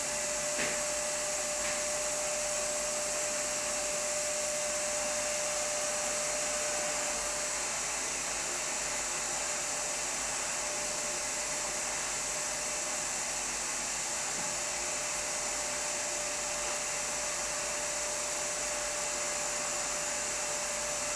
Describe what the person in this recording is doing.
vacuum cleaner is heared from one room away.